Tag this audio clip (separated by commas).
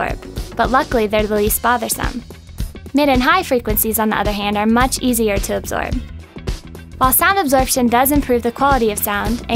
Speech, Music